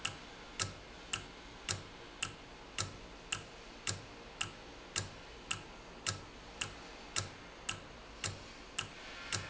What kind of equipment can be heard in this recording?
valve